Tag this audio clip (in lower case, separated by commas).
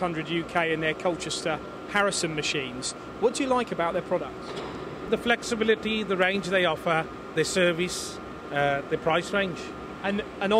speech